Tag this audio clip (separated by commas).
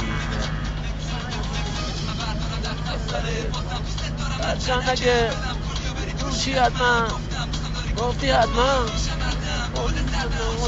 Music, Male singing